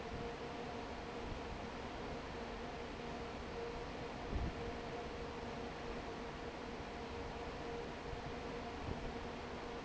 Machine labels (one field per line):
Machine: fan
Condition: normal